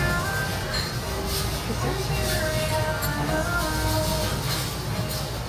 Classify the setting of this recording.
restaurant